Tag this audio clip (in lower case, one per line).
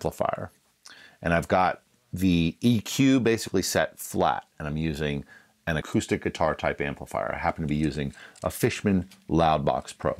speech